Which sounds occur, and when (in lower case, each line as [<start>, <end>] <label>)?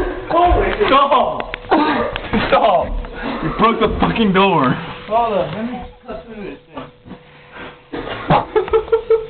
[0.01, 9.25] background noise
[0.24, 1.29] man speaking
[1.72, 3.04] man speaking
[3.56, 4.87] man speaking
[5.07, 5.91] man speaking
[6.07, 7.22] man speaking
[8.23, 9.25] laughter